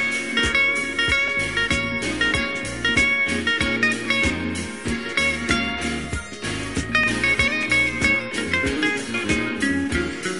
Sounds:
Music

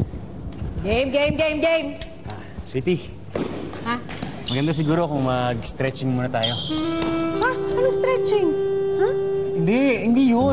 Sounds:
playing badminton

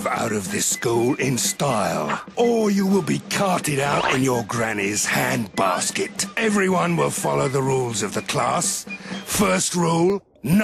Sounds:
Music, inside a small room, Speech

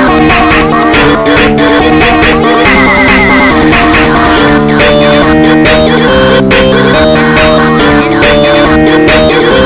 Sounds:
Music

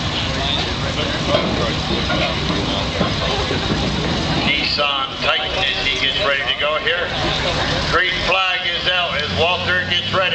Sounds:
Car, Speech, Vehicle

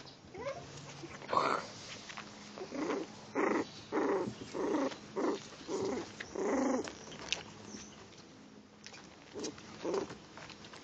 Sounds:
Growling, pets, Dog, Animal

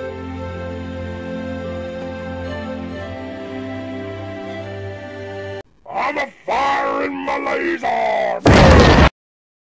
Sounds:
Speech, Music

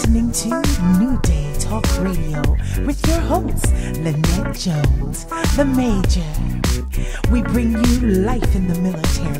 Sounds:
Music, Speech

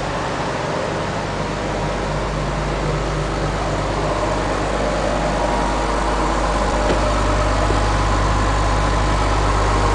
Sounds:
Bus, Vehicle, driving buses

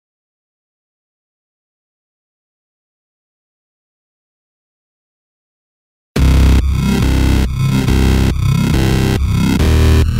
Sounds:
Dubstep, Music, Electronic music

